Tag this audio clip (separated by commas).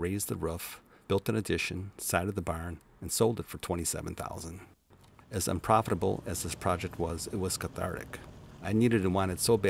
Vehicle, Speech